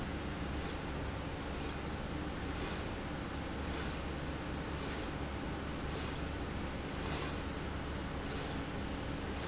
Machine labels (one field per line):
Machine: slide rail